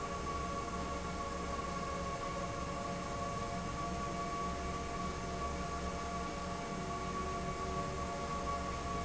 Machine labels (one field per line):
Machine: fan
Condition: abnormal